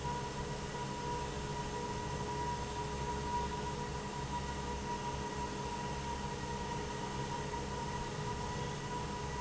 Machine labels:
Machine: fan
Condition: normal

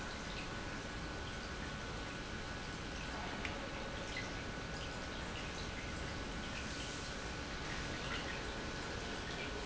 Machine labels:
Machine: pump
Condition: normal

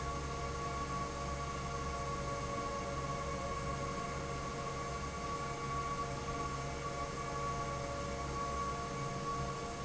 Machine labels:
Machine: fan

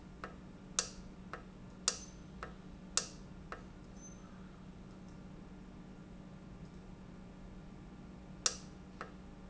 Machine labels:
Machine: valve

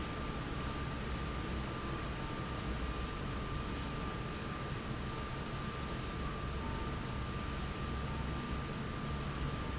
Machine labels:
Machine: fan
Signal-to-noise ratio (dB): -6 dB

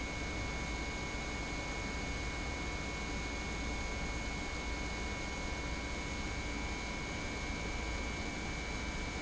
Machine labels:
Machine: pump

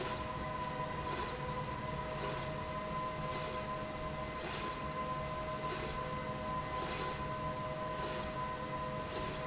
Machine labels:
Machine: slide rail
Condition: normal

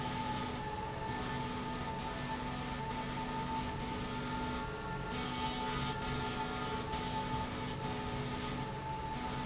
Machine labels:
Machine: slide rail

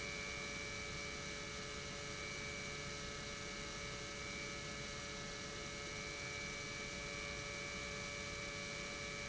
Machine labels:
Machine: pump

